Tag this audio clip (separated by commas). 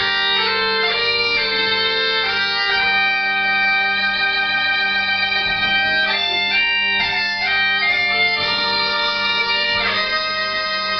Bagpipes, Musical instrument, Music